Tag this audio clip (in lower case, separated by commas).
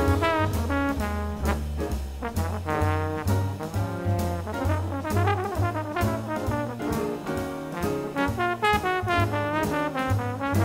classical music, trombone, music